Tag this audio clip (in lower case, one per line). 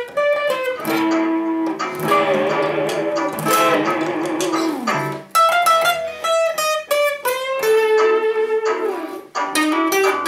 guitar
strum
music
plucked string instrument
musical instrument